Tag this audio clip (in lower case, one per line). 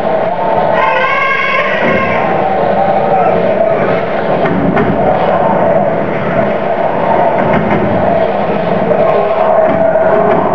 thump
music
speech